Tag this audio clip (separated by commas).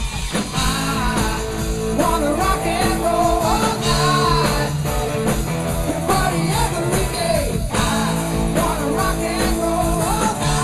Rock and roll, Music